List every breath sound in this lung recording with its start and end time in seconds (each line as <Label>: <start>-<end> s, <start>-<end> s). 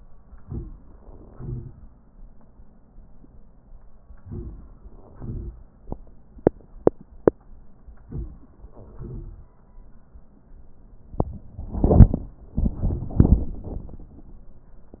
Inhalation: 0.36-0.74 s, 4.22-4.66 s, 8.04-8.53 s
Exhalation: 1.32-1.81 s, 5.14-5.58 s, 8.94-9.52 s